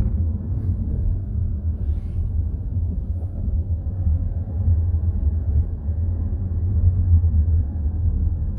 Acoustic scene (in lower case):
car